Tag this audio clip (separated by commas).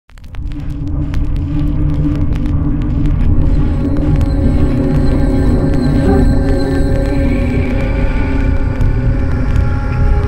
Walk, Sound effect